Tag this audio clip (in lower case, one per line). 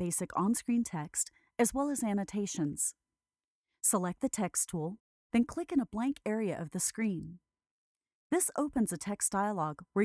speech